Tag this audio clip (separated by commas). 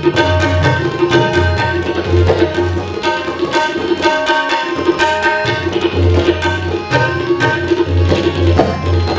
Music, Musical instrument, Percussion, Music of Asia, Tabla